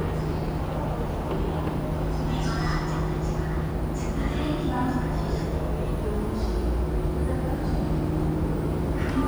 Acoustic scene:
subway station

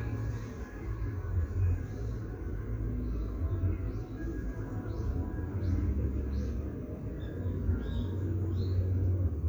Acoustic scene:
park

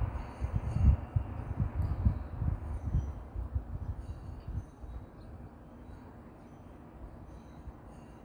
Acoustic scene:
street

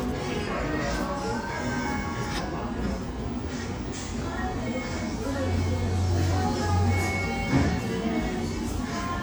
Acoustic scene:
cafe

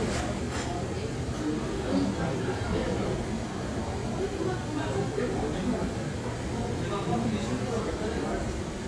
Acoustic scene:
crowded indoor space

